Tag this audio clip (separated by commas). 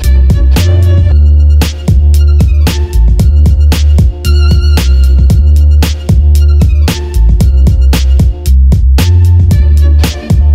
Music